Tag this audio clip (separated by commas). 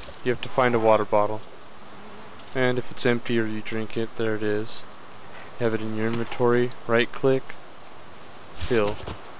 Speech, Liquid